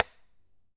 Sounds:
tap

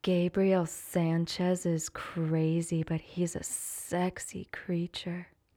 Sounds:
human voice

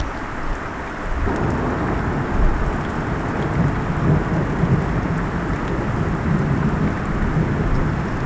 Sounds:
rain
wind
water
thunder
thunderstorm

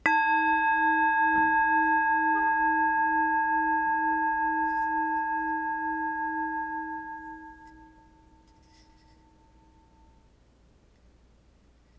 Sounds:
musical instrument
music

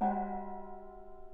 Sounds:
musical instrument
percussion
music
gong

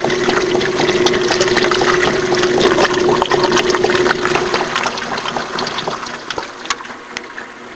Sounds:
engine

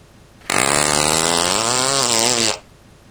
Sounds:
fart

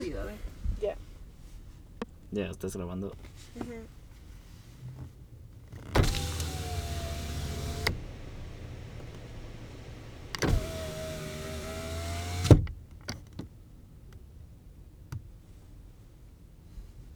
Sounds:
vehicle
motor vehicle (road)

